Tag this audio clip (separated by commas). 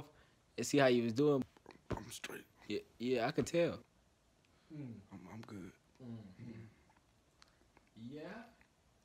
people coughing